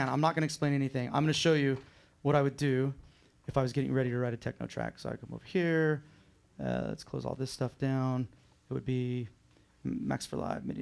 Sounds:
Speech

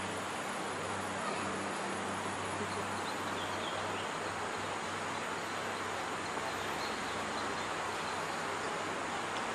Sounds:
Speech, Animal

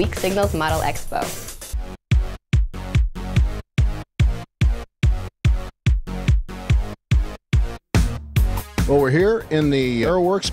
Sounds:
Speech, Music

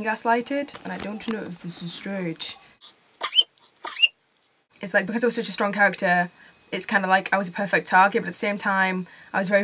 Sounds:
Speech, inside a small room

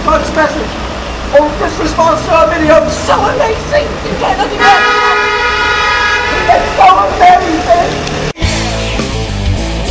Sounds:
Car

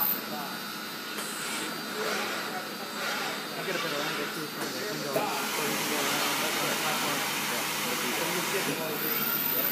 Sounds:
Speech

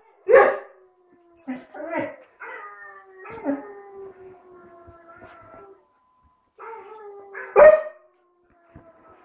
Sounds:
Animal, Howl, Dog, Domestic animals, Speech

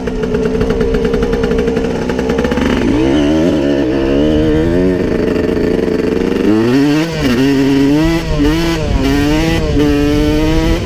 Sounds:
Motorcycle, driving motorcycle, Vehicle

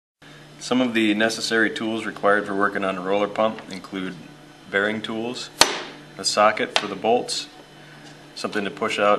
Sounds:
Speech

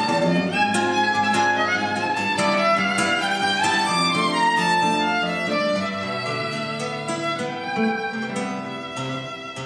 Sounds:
Musical instrument, Guitar, Violin, Music, Plucked string instrument

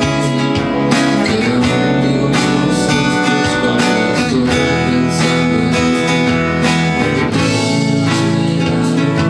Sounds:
Music, Guitar, Acoustic guitar, playing acoustic guitar, Musical instrument, Strum, Plucked string instrument

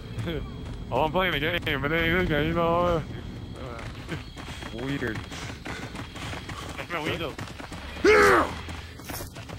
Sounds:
Speech

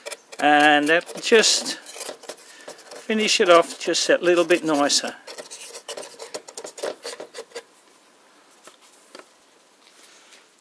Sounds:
Speech

